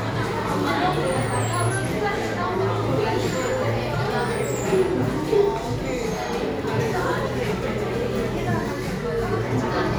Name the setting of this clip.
cafe